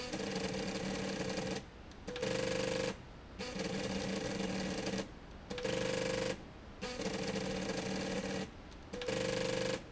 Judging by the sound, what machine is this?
slide rail